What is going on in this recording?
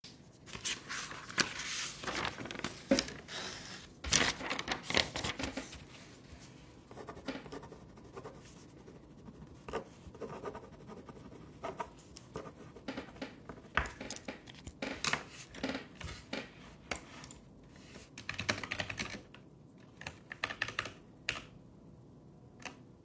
Phone lying on the table I wrote on paper and then typed on my PC